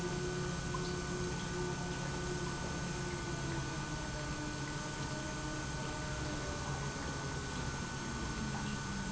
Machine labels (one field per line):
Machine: pump